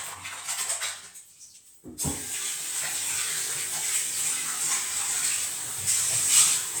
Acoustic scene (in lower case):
restroom